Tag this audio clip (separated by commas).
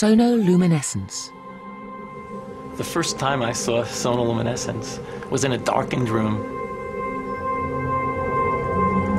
Music, Speech, inside a small room